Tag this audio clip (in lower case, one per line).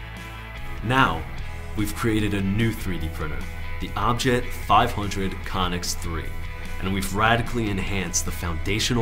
music
speech